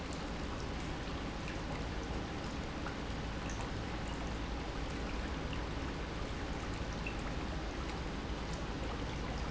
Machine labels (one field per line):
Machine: pump